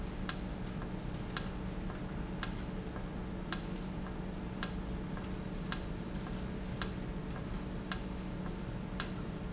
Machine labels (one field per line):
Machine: valve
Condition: normal